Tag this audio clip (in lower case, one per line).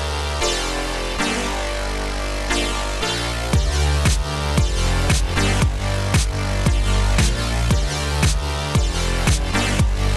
music